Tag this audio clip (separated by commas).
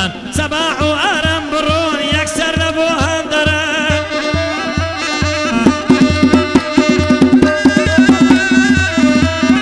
Drum, Percussion